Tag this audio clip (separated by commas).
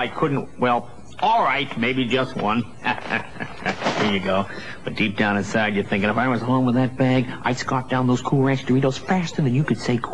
Speech